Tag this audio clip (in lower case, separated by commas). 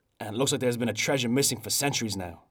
human voice, speech